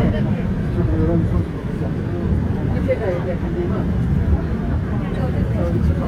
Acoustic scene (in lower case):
subway train